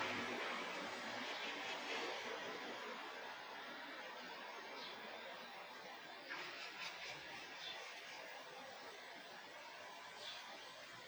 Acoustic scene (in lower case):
park